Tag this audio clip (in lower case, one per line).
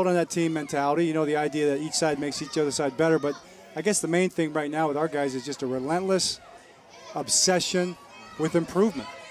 speech